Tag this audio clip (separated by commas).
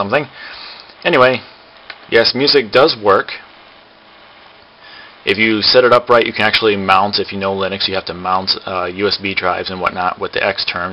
Speech, inside a small room